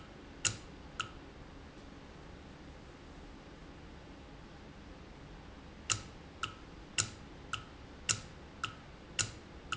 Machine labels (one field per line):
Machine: valve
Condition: normal